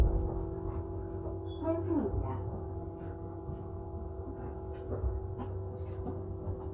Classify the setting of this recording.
bus